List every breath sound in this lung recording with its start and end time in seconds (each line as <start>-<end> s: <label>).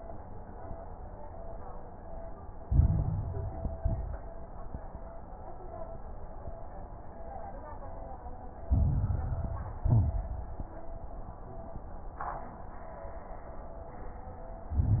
2.60-3.78 s: inhalation
2.60-3.78 s: crackles
3.80-4.56 s: exhalation
3.80-4.56 s: crackles
8.68-9.82 s: inhalation
8.68-9.82 s: crackles
9.88-10.60 s: exhalation
9.88-10.60 s: crackles
14.71-15.00 s: inhalation
14.71-15.00 s: crackles